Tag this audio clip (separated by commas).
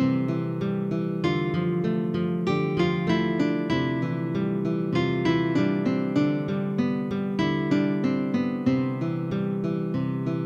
Music